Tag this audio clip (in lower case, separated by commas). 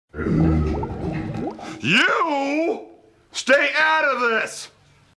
speech